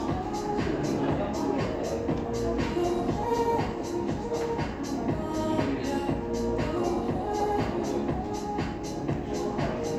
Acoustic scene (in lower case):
cafe